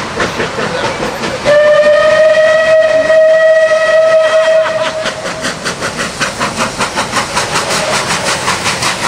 And engine is running and rhythmic clacking is occurring, and a train whistle blows